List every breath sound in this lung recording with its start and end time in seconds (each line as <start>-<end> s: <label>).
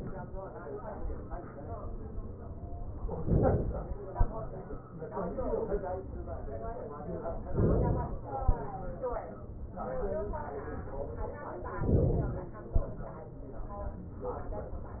3.23-4.08 s: inhalation
4.08-5.58 s: exhalation
7.50-8.31 s: inhalation
8.31-9.60 s: exhalation
11.78-12.80 s: inhalation
12.80-14.16 s: exhalation